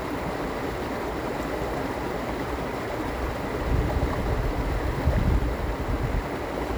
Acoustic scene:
park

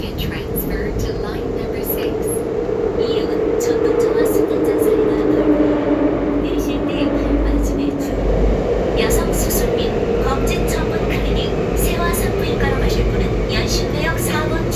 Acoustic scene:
subway train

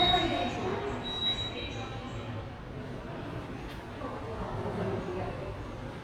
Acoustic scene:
subway station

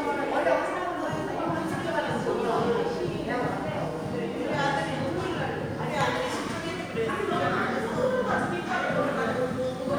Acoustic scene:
crowded indoor space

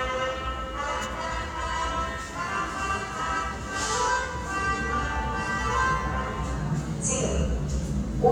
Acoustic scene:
subway station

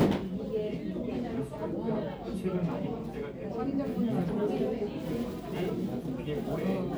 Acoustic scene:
crowded indoor space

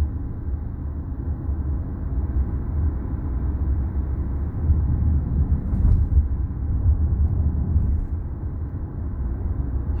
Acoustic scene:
car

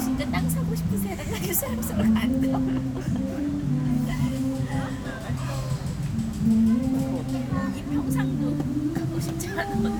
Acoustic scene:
park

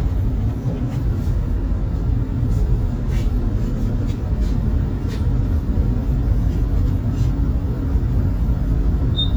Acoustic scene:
bus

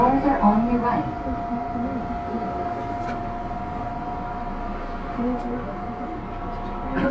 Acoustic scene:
subway train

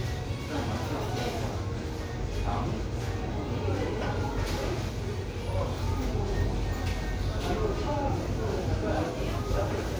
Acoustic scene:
crowded indoor space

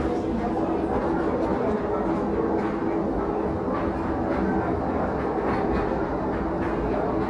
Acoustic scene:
crowded indoor space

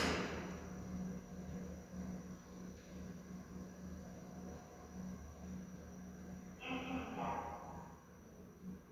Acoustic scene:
elevator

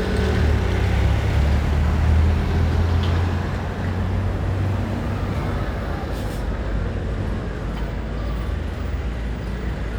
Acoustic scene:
residential area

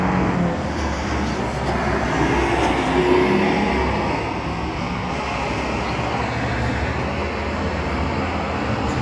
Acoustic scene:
street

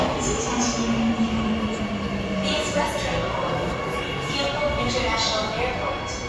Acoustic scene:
subway station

